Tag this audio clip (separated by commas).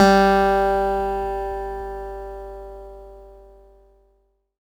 Guitar, Plucked string instrument, Musical instrument, Music, Acoustic guitar